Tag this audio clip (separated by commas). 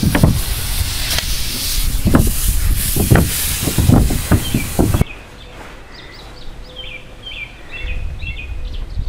Music